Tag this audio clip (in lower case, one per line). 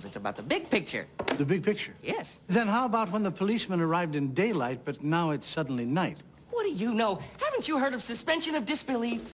speech